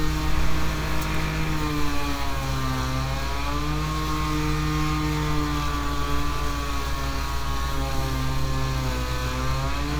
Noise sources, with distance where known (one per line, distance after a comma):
unidentified powered saw